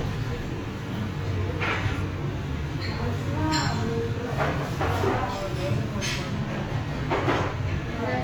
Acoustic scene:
restaurant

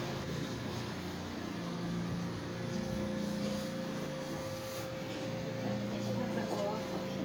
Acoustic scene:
residential area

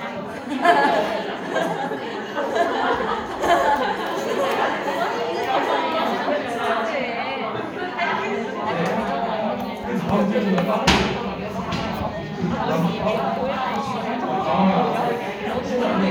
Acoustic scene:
crowded indoor space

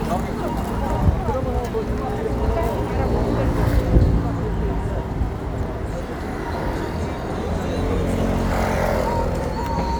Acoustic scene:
street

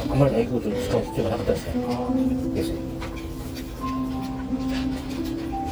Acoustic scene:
restaurant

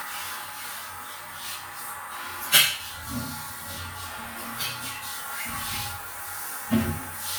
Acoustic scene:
restroom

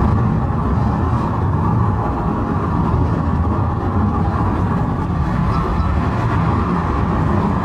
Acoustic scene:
car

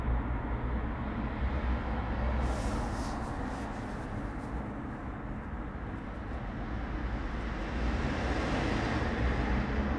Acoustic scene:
residential area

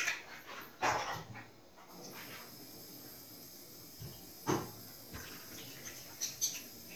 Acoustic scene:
restroom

